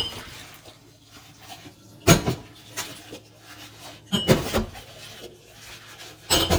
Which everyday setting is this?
kitchen